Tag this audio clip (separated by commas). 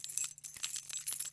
home sounds, Keys jangling, Rattle